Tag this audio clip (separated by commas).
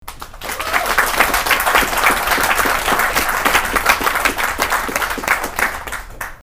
Applause, Hands, Human group actions, Cheering, Clapping